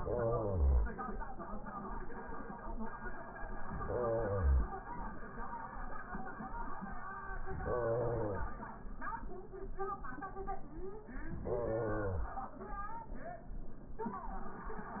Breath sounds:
0.00-0.87 s: inhalation
3.60-4.85 s: inhalation
7.44-8.83 s: inhalation
11.35-12.52 s: inhalation

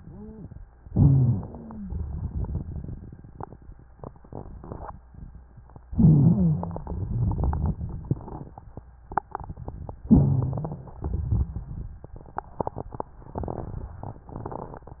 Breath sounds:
0.84-1.75 s: inhalation
0.84-1.75 s: rhonchi
1.78-3.81 s: exhalation
1.78-3.81 s: crackles
5.90-6.81 s: inhalation
5.90-6.81 s: rhonchi
6.83-8.52 s: exhalation
6.83-8.52 s: crackles
10.11-11.03 s: inhalation
10.11-11.03 s: rhonchi
11.02-12.09 s: exhalation
11.02-12.09 s: crackles

